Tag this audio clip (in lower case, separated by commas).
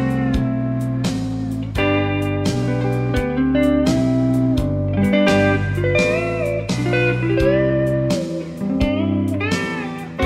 bass guitar, music, musical instrument, slide guitar, guitar, plucked string instrument